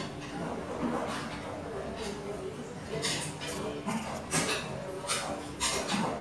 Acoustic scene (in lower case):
restaurant